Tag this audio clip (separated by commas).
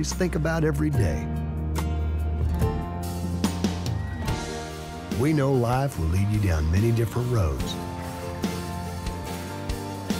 Speech, Music